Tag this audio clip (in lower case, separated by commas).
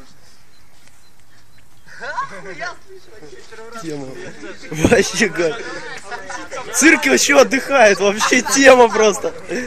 speech